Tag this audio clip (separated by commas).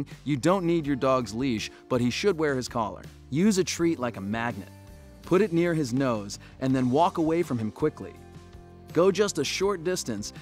Music, Speech